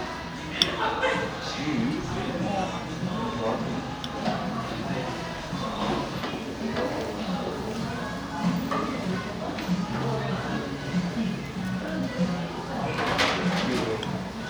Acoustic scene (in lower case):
cafe